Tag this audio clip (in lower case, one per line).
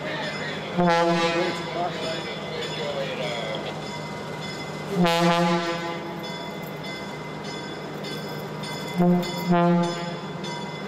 train horning